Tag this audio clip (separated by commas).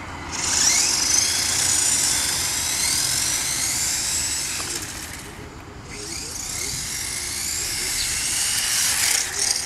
Speech